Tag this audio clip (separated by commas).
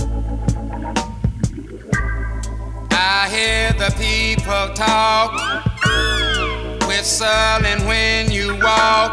Plucked string instrument, Musical instrument, Guitar, Music